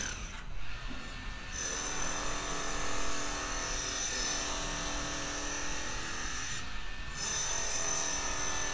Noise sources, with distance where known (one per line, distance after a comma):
unidentified impact machinery, near